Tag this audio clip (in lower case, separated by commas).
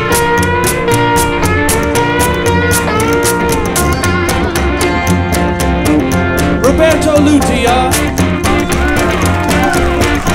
playing washboard